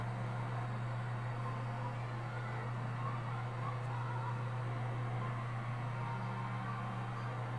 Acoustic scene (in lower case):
elevator